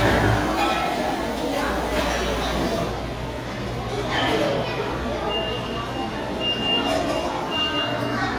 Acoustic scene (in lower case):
restaurant